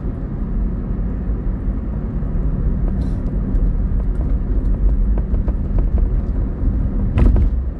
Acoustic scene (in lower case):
car